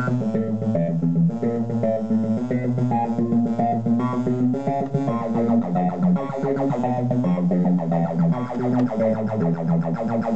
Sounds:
Music, Sound effect

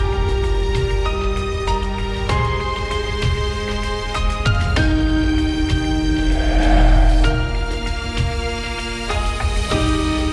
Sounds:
Music

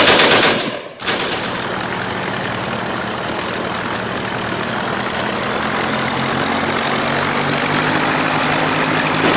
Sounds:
Engine knocking, Motorboat, Engine

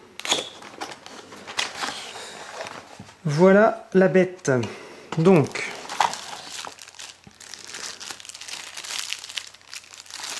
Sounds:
Speech

